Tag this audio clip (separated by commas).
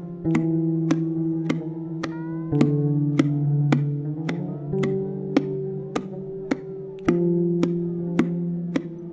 Music, Sad music